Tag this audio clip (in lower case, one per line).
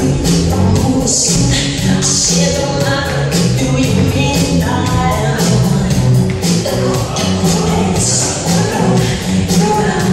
rope skipping